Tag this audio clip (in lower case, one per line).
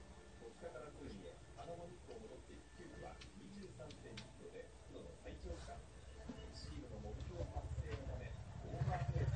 speech